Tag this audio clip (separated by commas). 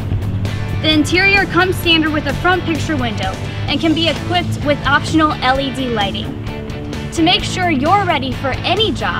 Speech, Music